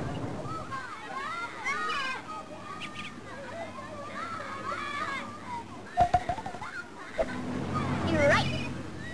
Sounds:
outside, urban or man-made, Speech

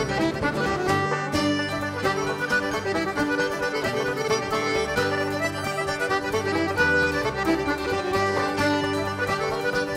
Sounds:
Music

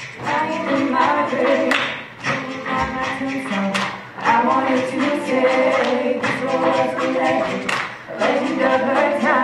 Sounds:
Tap, A capella, Music, Vocal music, Singing

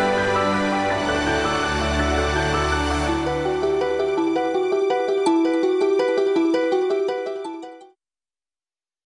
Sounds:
Music

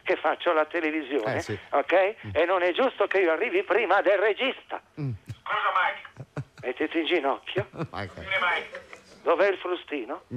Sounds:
Speech

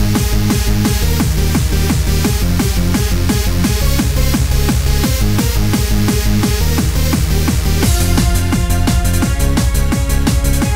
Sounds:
Electronic music, Music, Techno

